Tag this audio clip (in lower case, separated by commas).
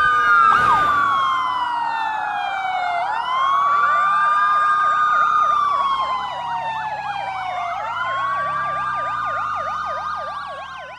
police car (siren)